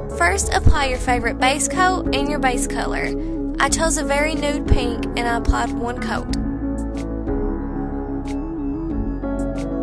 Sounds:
Ambient music

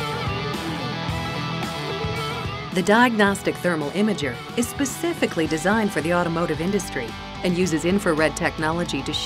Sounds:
Music, Speech

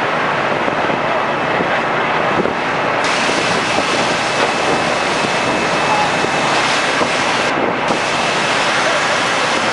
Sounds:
Speech

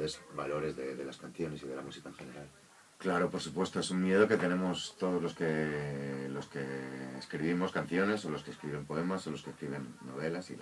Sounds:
Speech

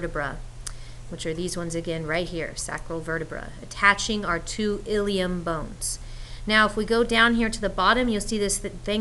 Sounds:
Speech

